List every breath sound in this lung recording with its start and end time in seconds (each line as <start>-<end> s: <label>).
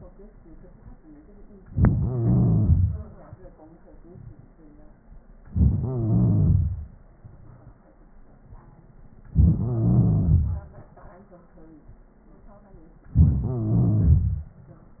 1.71-3.06 s: inhalation
5.53-6.88 s: inhalation
9.34-10.69 s: inhalation
13.15-14.50 s: inhalation